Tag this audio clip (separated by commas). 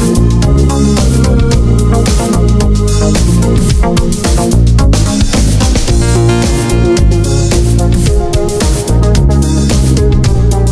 Music